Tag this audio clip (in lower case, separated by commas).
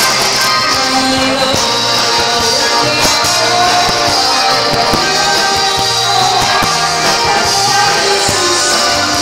singing, music